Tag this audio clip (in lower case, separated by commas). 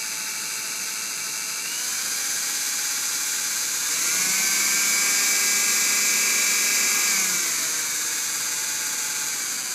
engine